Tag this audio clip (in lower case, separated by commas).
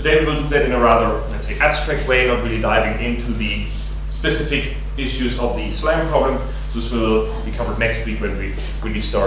speech